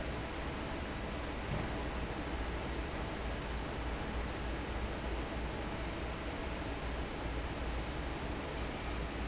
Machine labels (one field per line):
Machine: fan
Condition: normal